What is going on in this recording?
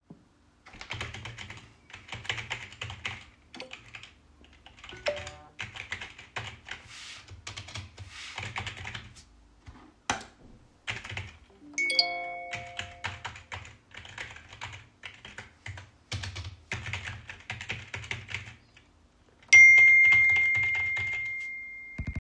I am typing on keyboard, while receiving bunch of notification